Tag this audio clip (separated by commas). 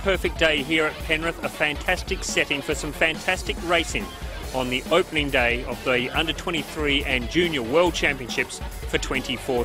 Music, Speech